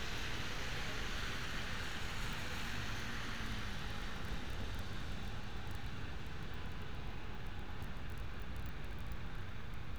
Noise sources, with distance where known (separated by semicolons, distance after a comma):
engine of unclear size